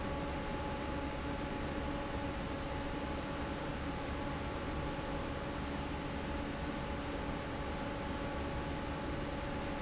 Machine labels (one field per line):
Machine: fan